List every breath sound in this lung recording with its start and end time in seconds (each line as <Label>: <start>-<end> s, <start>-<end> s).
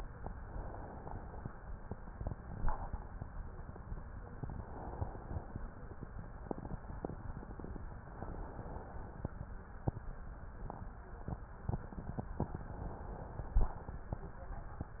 Inhalation: 0.41-1.53 s, 4.36-5.49 s, 8.26-9.38 s, 12.46-13.59 s